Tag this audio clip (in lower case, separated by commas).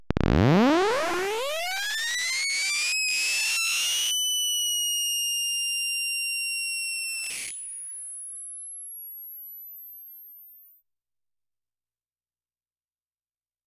screech